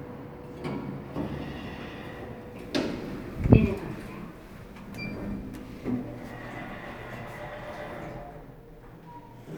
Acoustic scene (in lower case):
elevator